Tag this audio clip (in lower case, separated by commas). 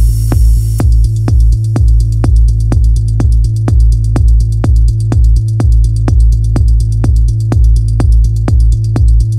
music